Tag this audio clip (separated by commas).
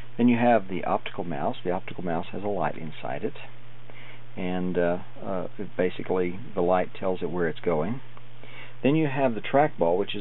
Speech